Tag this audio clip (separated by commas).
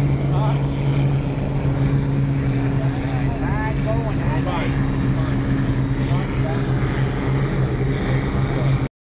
Boat, Speech, Vehicle, speedboat